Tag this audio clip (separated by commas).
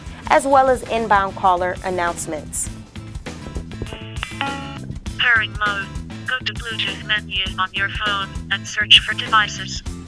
Speech, Music